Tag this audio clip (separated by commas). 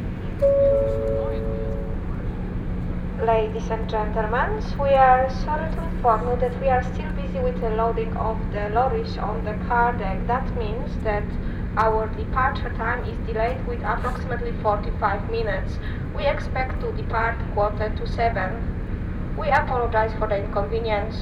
Water vehicle, Vehicle